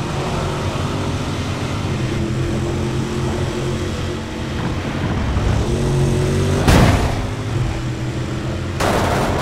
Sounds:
vehicle, car

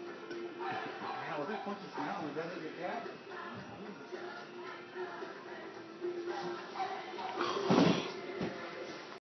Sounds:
animal, speech, music

